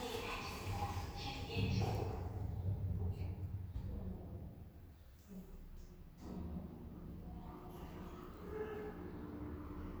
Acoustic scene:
elevator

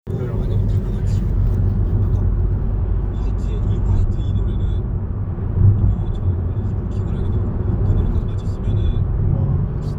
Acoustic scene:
car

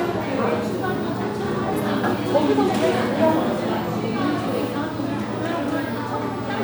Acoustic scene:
crowded indoor space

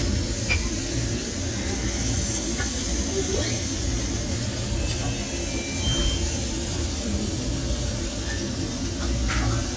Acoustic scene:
crowded indoor space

